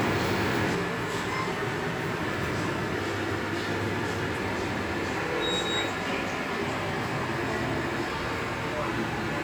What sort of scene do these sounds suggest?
subway station